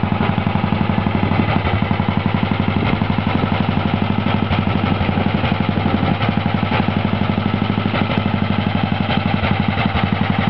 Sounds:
Idling, Engine, Medium engine (mid frequency)

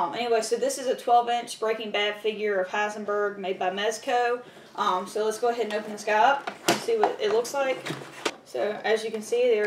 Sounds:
Speech

